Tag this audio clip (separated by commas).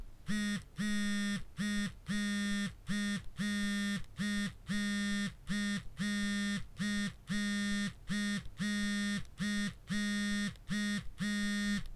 Alarm, Telephone